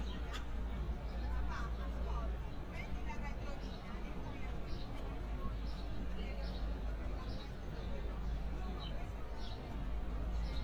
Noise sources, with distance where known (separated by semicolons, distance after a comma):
person or small group talking, far